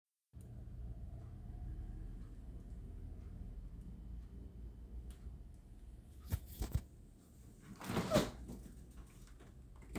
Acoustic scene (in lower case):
kitchen